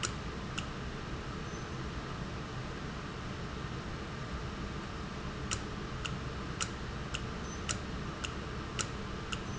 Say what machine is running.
valve